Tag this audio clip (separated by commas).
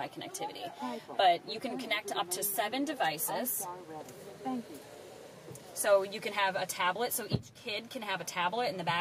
Speech